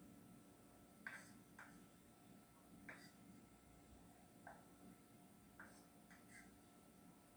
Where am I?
in a kitchen